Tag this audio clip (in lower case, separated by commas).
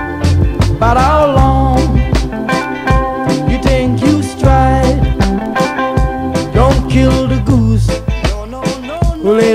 music